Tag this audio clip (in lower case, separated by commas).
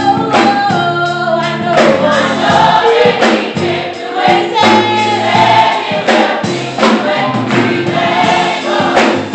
music, choir, female singing